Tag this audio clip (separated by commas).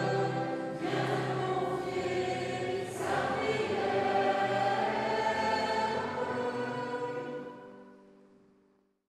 Music